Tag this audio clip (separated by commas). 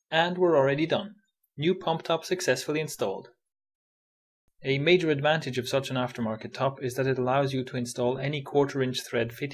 Speech